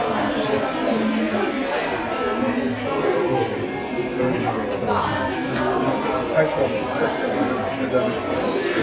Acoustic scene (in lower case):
crowded indoor space